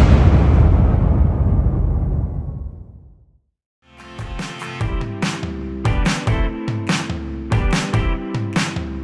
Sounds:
Music

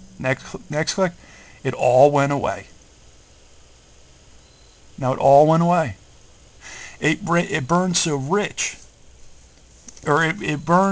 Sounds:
Speech

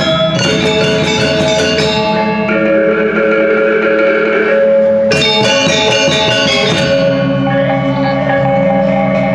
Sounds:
Music, Bell

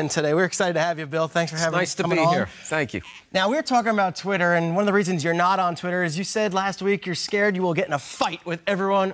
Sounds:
Speech

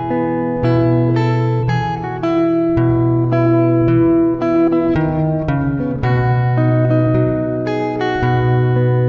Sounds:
Music

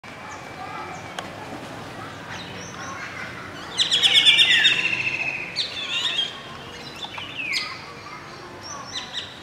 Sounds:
Bird vocalization, Speech, Bird, Environmental noise, outside, rural or natural

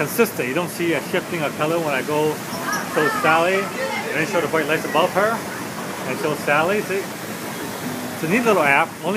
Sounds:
Speech, Waterfall

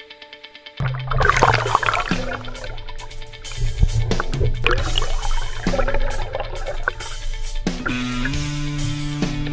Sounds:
Gurgling, Music

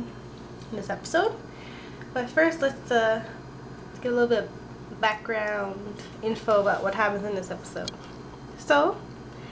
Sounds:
Speech

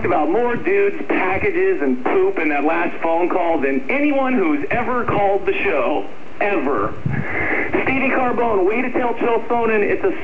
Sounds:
Speech

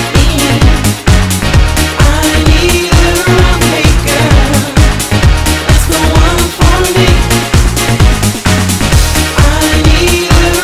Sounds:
Music

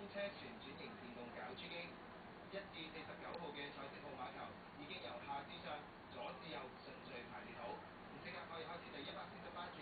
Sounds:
Speech

